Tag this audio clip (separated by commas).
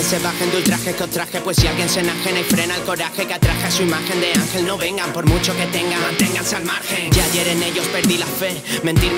Music